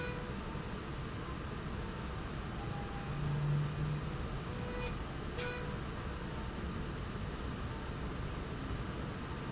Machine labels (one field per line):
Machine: slide rail